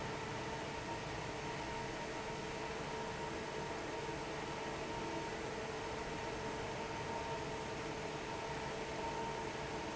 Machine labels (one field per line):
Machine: fan